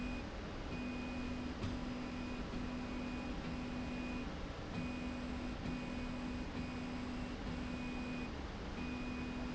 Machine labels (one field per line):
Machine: slide rail